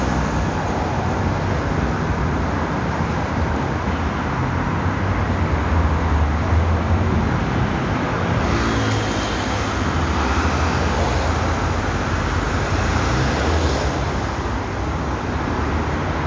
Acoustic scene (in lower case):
street